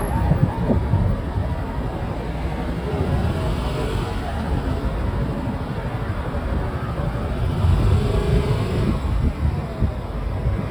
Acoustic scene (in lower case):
residential area